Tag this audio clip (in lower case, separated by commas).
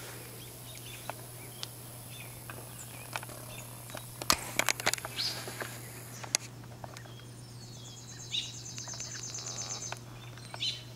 animal